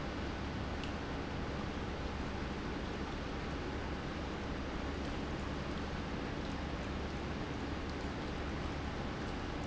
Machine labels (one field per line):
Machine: pump